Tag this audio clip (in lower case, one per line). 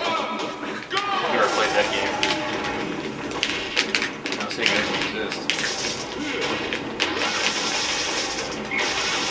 whack